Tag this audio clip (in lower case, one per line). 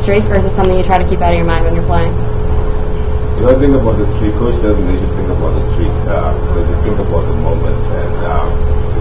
inside a small room
speech